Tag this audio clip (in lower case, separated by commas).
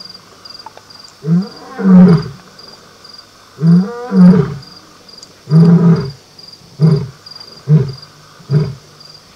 lions roaring